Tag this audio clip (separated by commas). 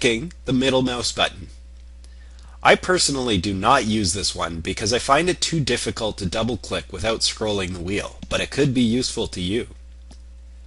Speech